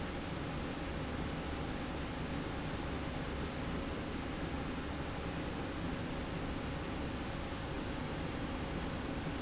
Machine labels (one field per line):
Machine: slide rail